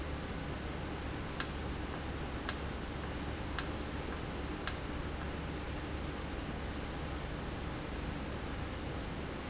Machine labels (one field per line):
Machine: valve